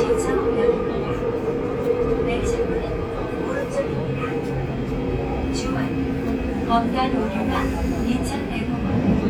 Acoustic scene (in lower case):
subway train